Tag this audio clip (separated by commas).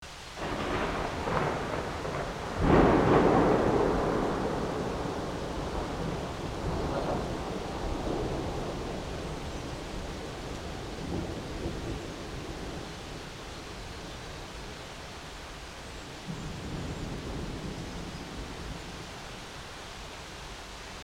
Thunderstorm, Thunder, Rain, Water